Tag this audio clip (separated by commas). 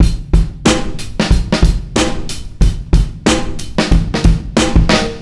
Musical instrument, Percussion, Snare drum, Music, Drum, Drum kit